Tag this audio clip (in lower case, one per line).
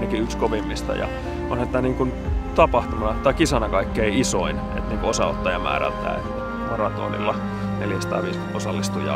speech
music